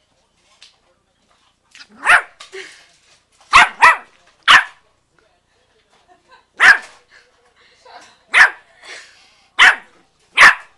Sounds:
pets, Animal, Whimper (dog), Bark, Dog

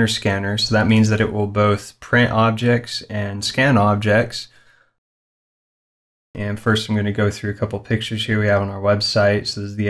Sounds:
Speech

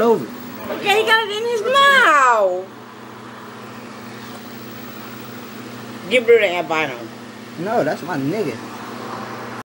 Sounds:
Speech

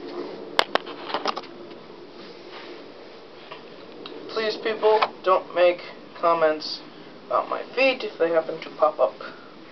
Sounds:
Speech

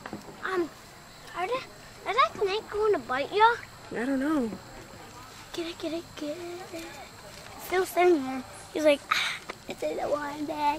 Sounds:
Speech, outside, rural or natural

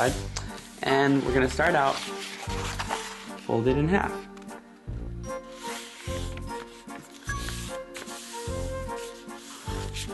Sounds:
Music, Speech

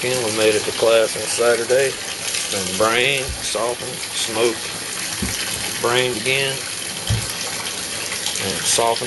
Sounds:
faucet, Water, Bathtub (filling or washing)

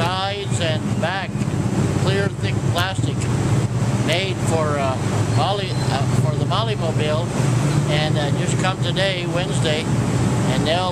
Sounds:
Speech

